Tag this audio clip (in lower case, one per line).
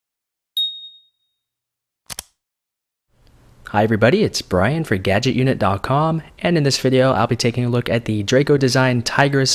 speech